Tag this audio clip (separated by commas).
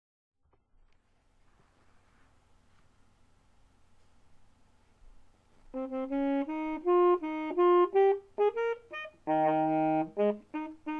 Musical instrument, Wind instrument, Brass instrument, Saxophone, Music